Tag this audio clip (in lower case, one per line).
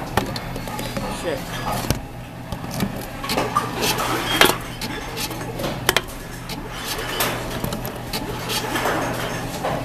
speech